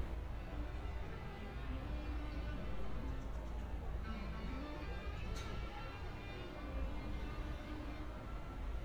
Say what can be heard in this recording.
music from a fixed source